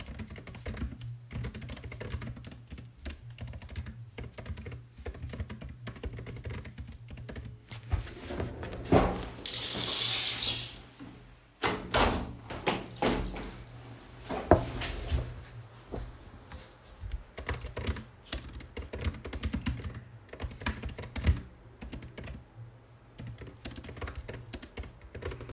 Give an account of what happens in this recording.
I was working on a laptop, then I stood up, drew the curtains, opened the window, and sat working back